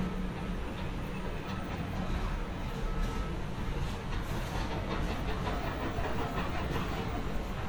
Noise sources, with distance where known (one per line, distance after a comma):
unidentified impact machinery